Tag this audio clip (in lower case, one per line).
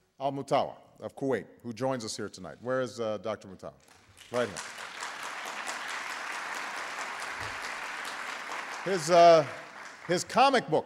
speech